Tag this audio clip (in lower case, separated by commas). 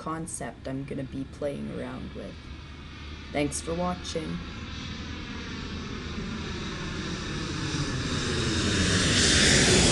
speech, aircraft engine, aircraft